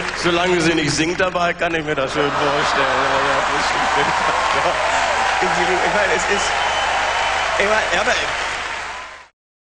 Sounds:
speech

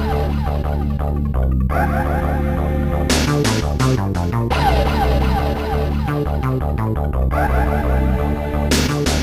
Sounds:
music

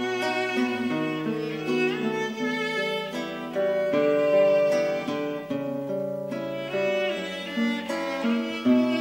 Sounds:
violin
pizzicato
bowed string instrument

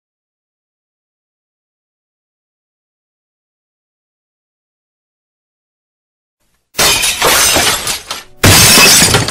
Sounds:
shatter
silence

